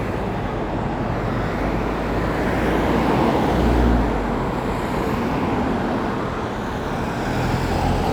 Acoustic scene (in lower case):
street